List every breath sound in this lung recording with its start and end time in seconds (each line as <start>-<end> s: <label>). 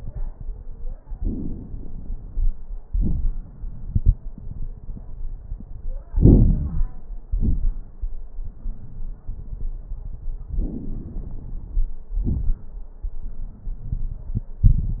1.18-2.50 s: inhalation
1.18-2.50 s: crackles
2.86-3.41 s: exhalation
2.86-3.41 s: crackles
6.15-6.89 s: inhalation
6.15-6.89 s: crackles
7.29-7.95 s: exhalation
7.29-7.95 s: crackles
10.57-11.94 s: inhalation
10.57-11.94 s: crackles
12.18-12.86 s: exhalation
12.18-12.86 s: crackles